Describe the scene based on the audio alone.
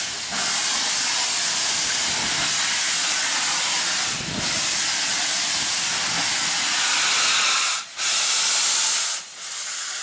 Loud, continuous hissing